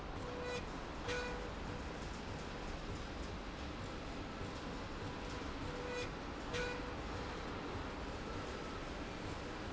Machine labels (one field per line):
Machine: slide rail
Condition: normal